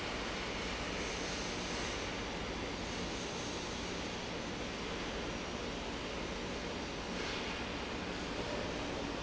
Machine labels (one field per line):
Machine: fan